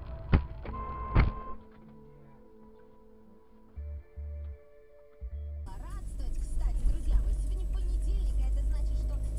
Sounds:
Speech

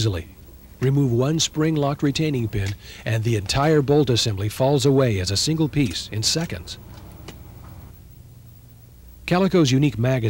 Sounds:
Speech

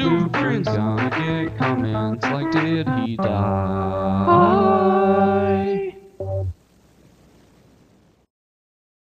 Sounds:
Music, Harpsichord

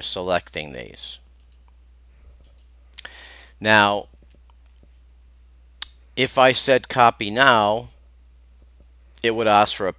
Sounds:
Speech, Clicking, inside a small room

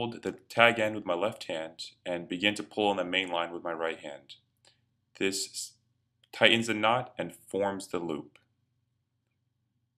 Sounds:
Speech

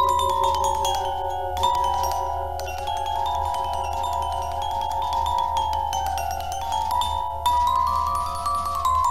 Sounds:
Music, Vibraphone

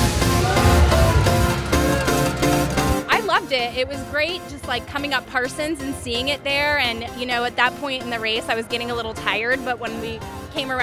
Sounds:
Speech, Music

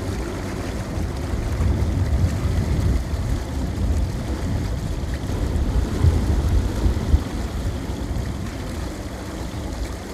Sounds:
outside, rural or natural

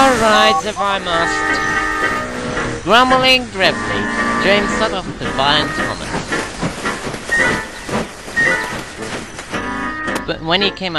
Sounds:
Speech

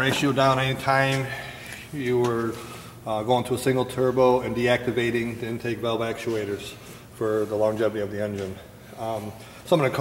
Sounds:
Speech

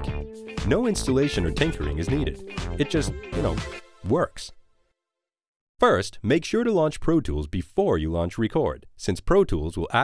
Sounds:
Speech, Music

